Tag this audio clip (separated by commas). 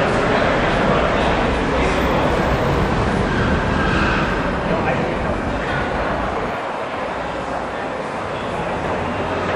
Speech